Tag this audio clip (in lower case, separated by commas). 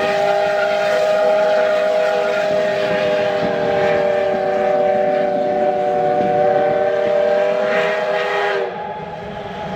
train whistle, train wagon, rail transport, train